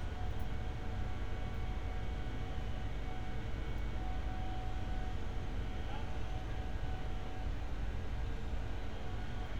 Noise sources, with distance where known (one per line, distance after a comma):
engine of unclear size
person or small group talking, far